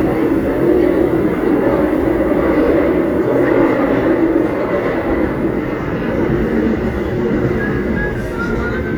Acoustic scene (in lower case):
subway train